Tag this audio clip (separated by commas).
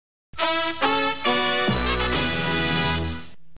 Television, Music